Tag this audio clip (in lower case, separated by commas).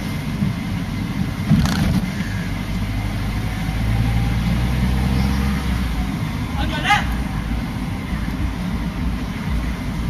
vehicle, speech, motor vehicle (road)